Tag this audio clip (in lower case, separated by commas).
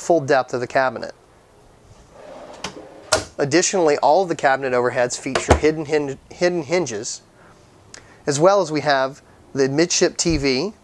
inside a small room, speech